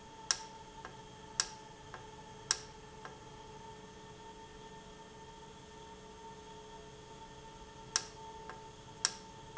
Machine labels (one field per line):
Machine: valve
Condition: normal